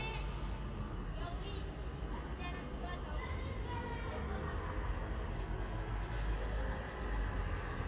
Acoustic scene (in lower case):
residential area